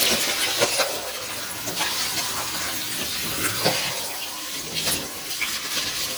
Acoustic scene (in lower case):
kitchen